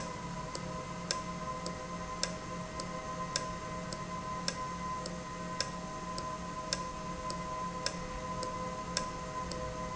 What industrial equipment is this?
valve